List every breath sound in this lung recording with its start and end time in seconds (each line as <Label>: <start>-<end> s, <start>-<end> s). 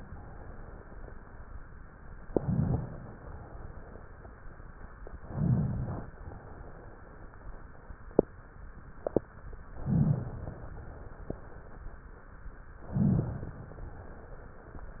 Inhalation: 2.24-2.94 s, 5.16-6.12 s, 9.77-10.72 s, 12.89-13.84 s
Exhalation: 3.02-4.25 s, 6.22-7.45 s, 10.74-11.84 s, 13.88-14.97 s